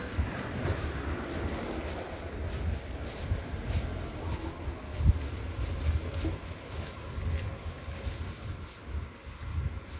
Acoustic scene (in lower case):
residential area